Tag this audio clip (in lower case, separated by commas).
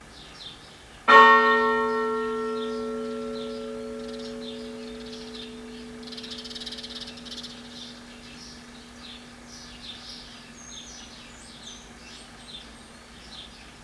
bell, church bell